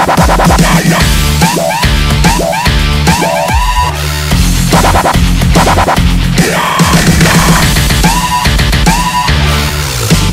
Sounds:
music

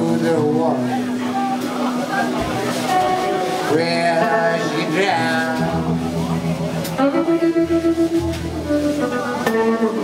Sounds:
speech, music

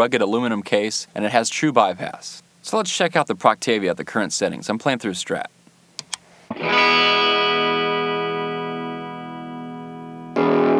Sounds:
effects unit, guitar, inside a small room, music, speech

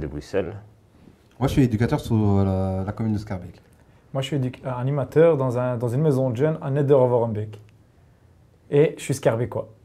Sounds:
speech

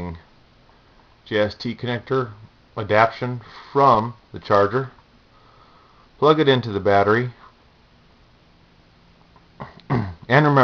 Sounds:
inside a small room, speech

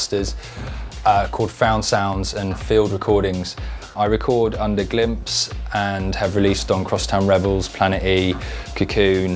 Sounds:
speech, music

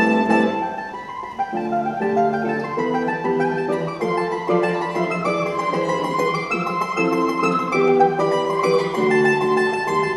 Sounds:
orchestra, musical instrument, mandolin, music, guitar, plucked string instrument

